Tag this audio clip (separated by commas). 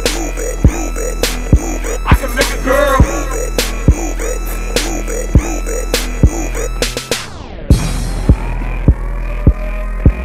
Music, Dance music